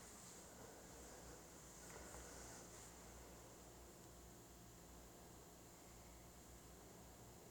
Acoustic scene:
elevator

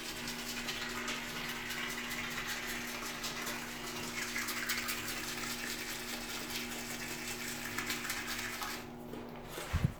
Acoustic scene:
restroom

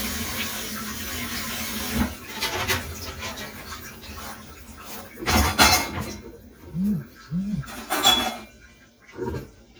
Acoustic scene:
kitchen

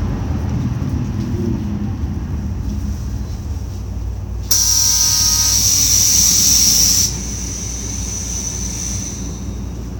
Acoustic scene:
bus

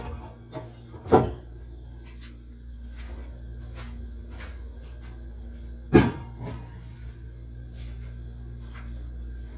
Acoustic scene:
kitchen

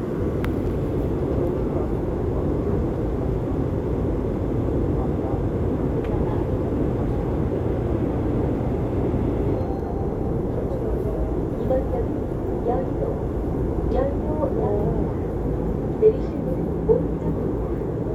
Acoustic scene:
subway train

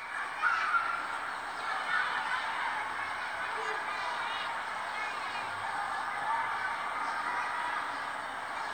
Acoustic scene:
residential area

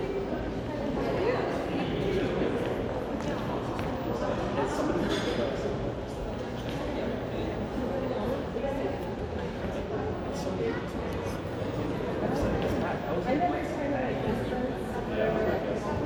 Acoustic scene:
crowded indoor space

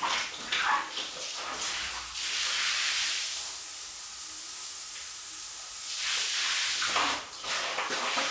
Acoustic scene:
restroom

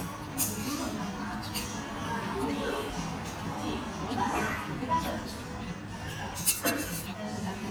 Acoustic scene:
restaurant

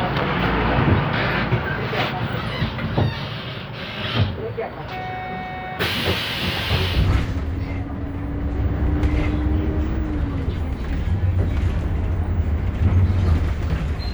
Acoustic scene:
bus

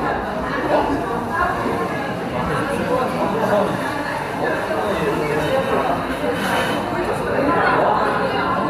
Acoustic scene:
cafe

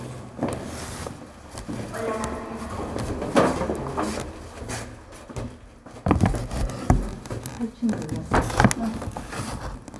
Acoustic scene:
elevator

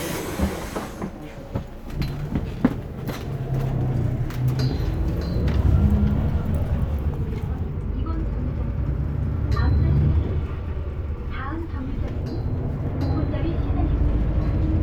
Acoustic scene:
bus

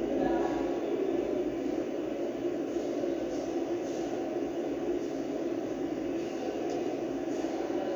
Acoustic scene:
subway station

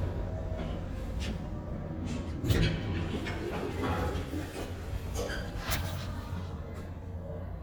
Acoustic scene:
elevator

